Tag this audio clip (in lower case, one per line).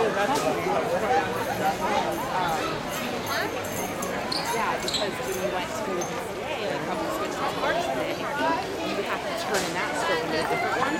walk
speech